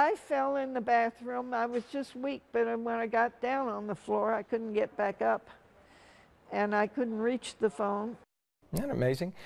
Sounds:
Speech

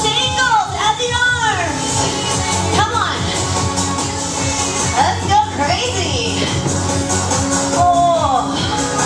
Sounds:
Speech, Music

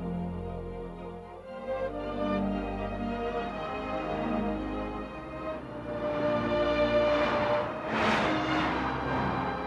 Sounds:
Music

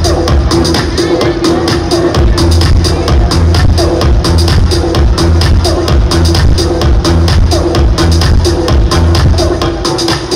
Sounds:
Music, Speech

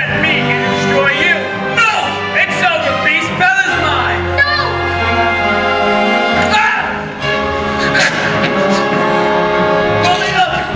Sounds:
Music, Speech

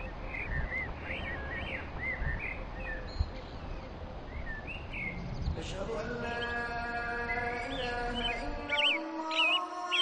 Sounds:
Bird vocalization

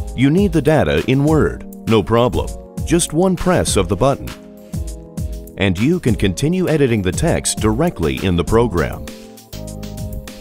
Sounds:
Music, Speech

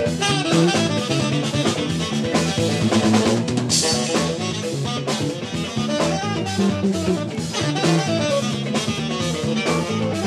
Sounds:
Music, Rimshot

